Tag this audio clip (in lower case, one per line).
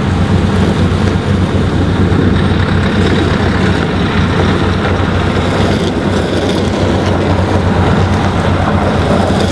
truck